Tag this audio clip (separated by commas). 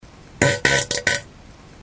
Fart